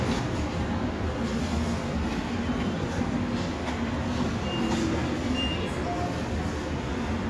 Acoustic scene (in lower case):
subway station